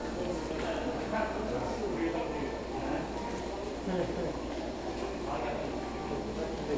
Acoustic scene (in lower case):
subway station